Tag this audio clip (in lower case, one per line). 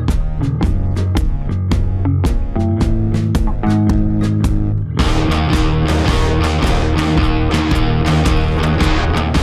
music